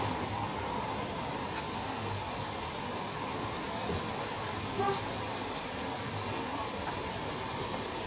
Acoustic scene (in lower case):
street